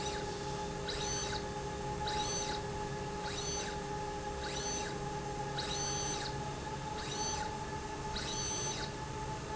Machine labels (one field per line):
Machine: slide rail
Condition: abnormal